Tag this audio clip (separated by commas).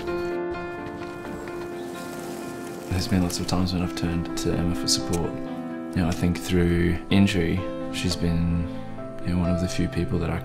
Music, Speech